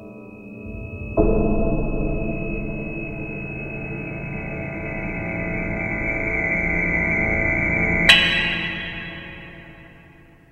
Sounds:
soundtrack music, music

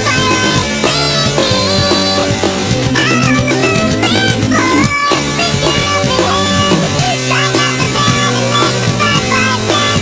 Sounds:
music

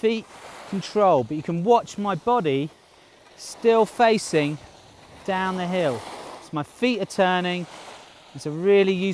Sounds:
skiing

